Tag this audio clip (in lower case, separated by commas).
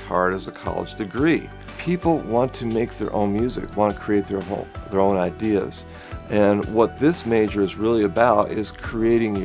speech, music